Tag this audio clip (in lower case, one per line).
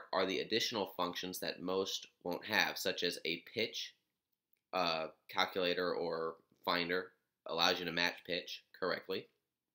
speech